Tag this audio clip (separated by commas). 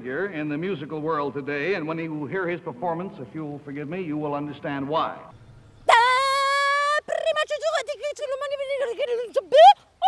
Speech, Music